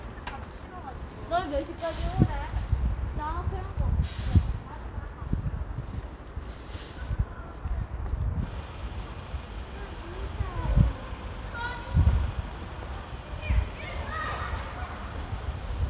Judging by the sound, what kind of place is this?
residential area